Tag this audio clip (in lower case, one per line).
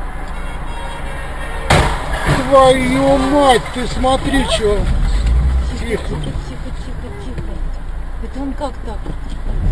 speech
car passing by